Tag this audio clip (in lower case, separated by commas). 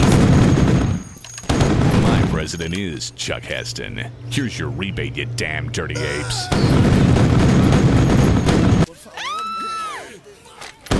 speech, sound effect